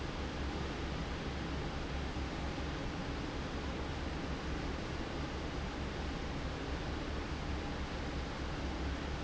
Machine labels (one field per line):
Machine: fan